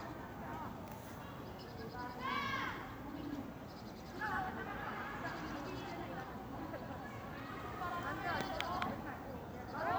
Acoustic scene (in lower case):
park